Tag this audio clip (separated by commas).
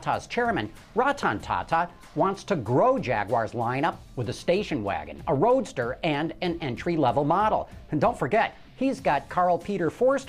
Speech, Music